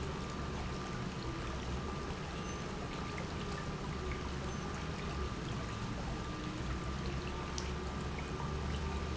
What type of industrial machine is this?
pump